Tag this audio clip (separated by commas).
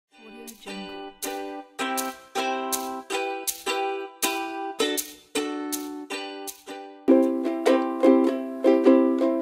playing ukulele